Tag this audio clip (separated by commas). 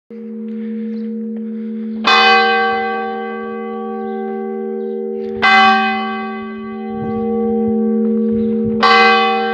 church bell ringing